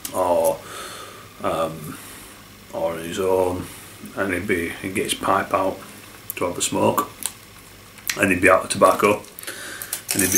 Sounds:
inside a small room, Speech

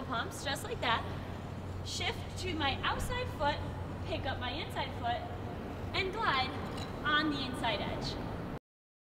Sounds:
Speech

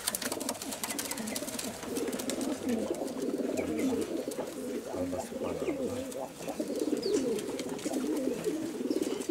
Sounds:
dove, Speech, Bird

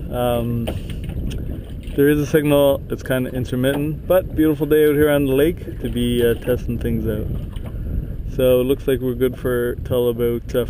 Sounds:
Speech, Vehicle

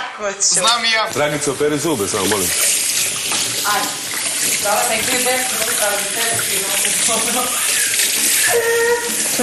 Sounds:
Water, Speech, inside a large room or hall

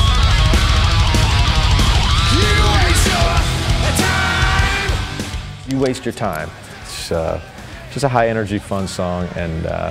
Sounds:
Music, Speech

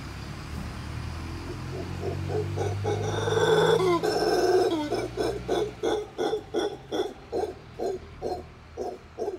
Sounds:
gibbon howling

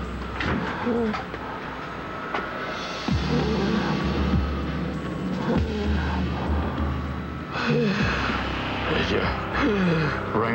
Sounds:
Speech

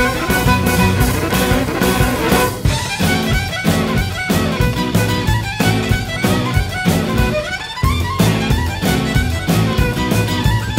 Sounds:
fiddle, Musical instrument, Music

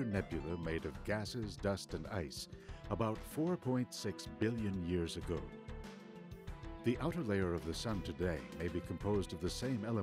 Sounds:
Speech, Music

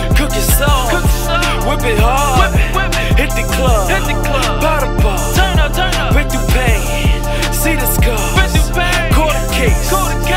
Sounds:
Music, Pop music

